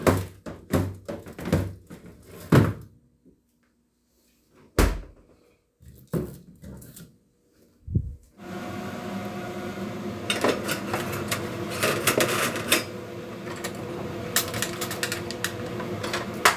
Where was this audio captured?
in a kitchen